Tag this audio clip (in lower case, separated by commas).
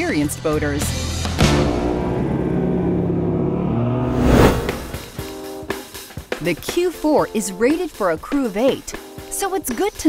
boat, motorboat, music, speech, vehicle